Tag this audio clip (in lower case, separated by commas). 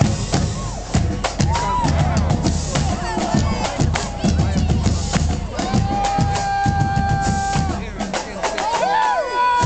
people marching